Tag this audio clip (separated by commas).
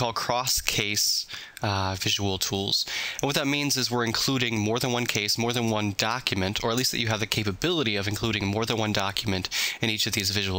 Speech